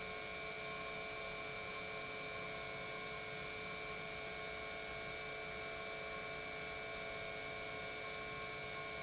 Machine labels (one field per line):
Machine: pump